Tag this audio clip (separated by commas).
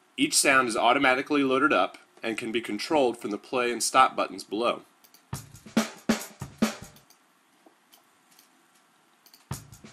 Music, Speech